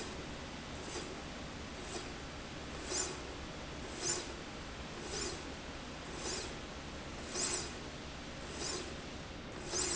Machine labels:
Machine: slide rail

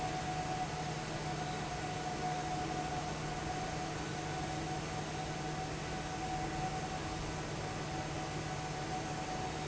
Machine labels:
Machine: fan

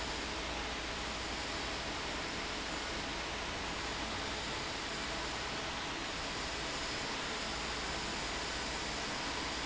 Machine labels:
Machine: fan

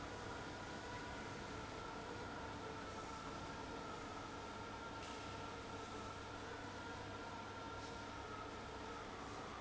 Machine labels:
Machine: fan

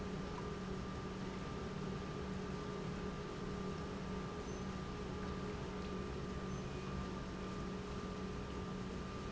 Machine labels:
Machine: pump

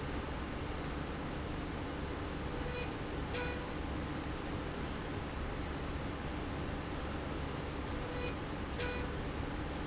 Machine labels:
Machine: slide rail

